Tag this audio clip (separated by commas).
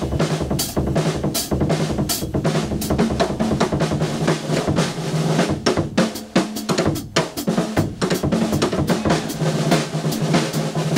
Musical instrument, Drum roll, Music, Drum